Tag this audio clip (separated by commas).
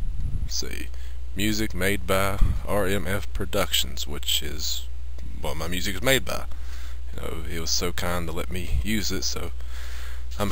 Speech